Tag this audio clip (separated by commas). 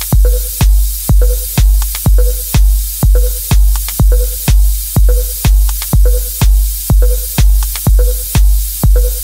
Sampler, Music